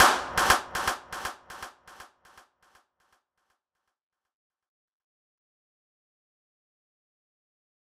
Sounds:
clapping
hands

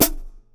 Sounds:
cymbal
hi-hat
music
percussion
musical instrument

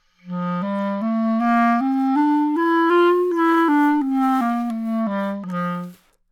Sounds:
musical instrument
music
woodwind instrument

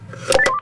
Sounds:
telephone
alarm

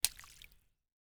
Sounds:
liquid
splatter

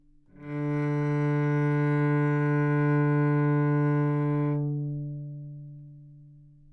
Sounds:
bowed string instrument
music
musical instrument

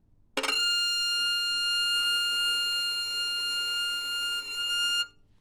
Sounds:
musical instrument
bowed string instrument
music

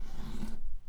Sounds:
home sounds
drawer open or close

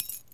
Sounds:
home sounds
coin (dropping)

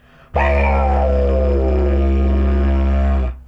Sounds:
music
musical instrument

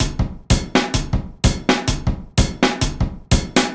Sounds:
drum kit
percussion
music
drum
musical instrument

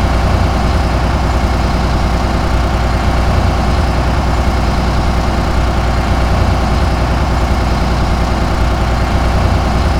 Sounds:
vehicle
idling
motor vehicle (road)
engine
bus

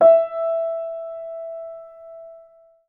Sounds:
musical instrument
music
piano
keyboard (musical)

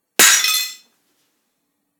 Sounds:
shatter
glass

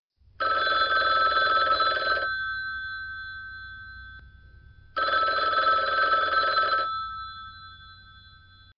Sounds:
telephone
alarm

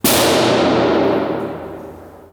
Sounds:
explosion

